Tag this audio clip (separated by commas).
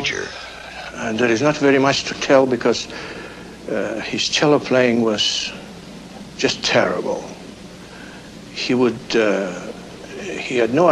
Speech